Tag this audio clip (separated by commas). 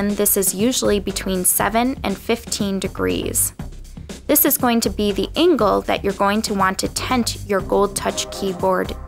Speech, Music